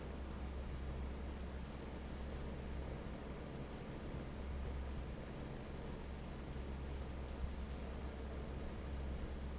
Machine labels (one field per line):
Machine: fan